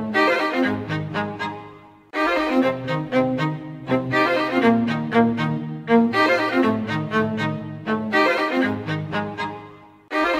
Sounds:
music, orchestra

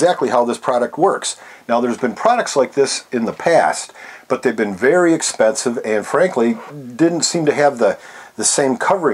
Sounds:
speech

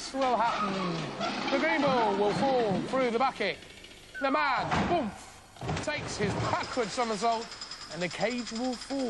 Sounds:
speech

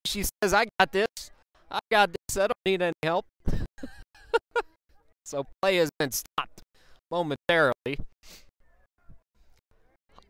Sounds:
speech

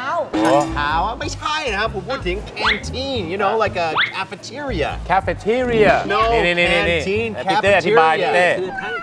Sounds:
music, speech

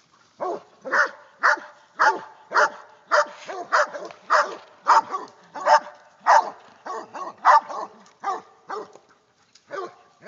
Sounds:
dog baying

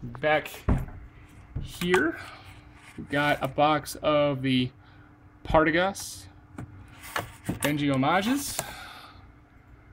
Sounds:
speech

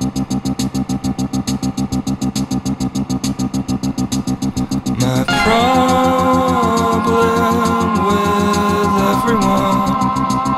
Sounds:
sound effect, music

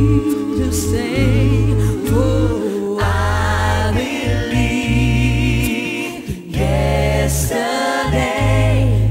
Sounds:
music

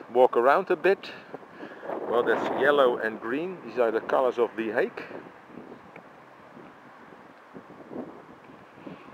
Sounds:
inside a public space, speech

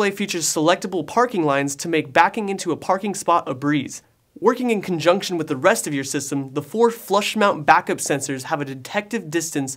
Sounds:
speech

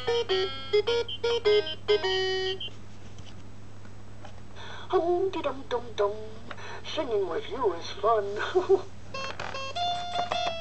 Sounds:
music, inside a small room, speech

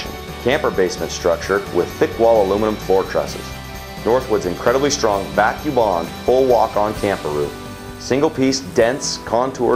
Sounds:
speech, music

